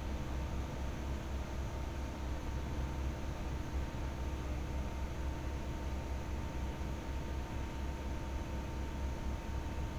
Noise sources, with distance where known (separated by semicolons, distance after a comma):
engine of unclear size, near